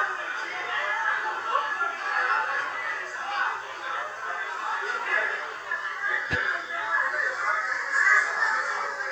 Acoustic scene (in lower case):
crowded indoor space